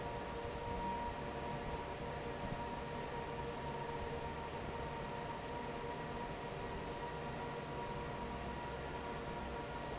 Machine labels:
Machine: fan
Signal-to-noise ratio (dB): 0 dB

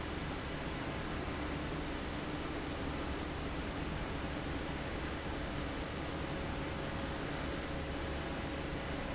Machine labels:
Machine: fan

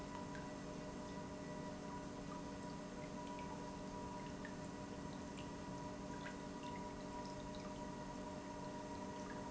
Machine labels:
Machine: pump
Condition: normal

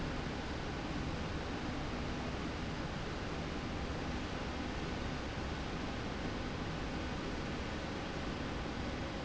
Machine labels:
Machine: slide rail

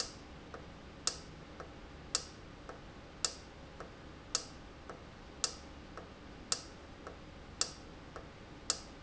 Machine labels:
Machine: valve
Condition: normal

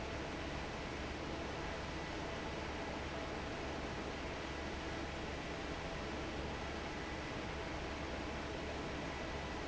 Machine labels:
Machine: fan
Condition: normal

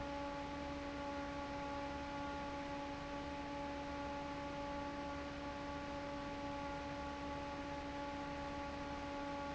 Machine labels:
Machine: fan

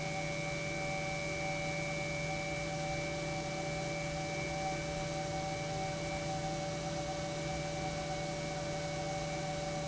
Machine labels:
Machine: pump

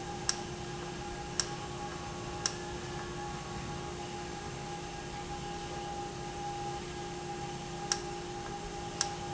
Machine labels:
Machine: valve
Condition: normal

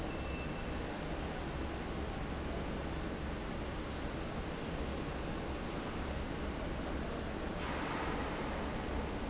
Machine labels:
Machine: fan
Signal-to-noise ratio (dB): -6 dB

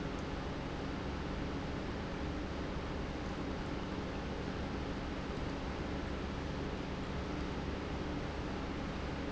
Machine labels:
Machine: pump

